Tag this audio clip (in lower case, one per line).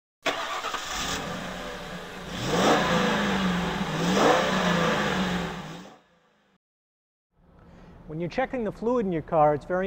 speech